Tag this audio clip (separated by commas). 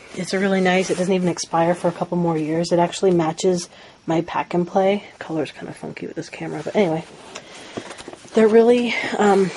Speech